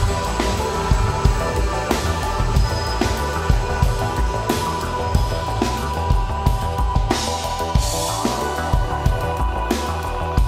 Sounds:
Music, New-age music, Rhythm and blues

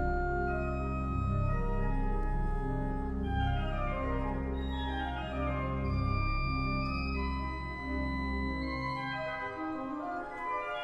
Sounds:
Percussion, Music

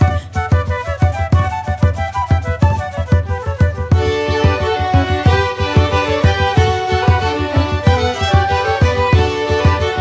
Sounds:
Music

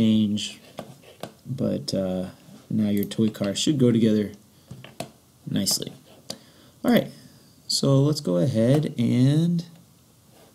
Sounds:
Speech

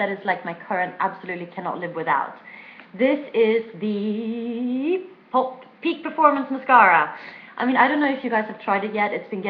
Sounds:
Speech

